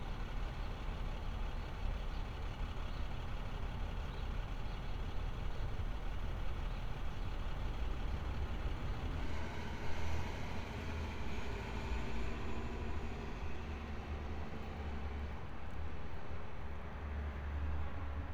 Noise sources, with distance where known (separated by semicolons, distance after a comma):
large-sounding engine